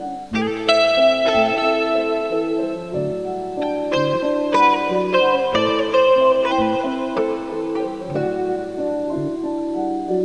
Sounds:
music

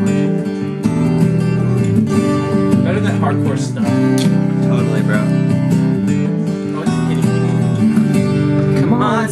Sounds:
singing
strum

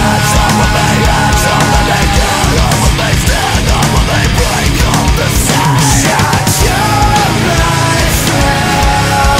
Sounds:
music

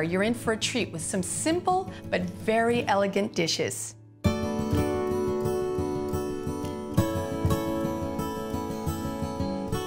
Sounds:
speech
music

